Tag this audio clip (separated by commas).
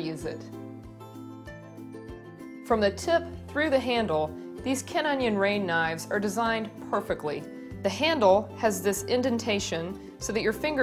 Speech, Music